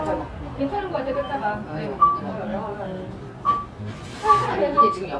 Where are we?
in a cafe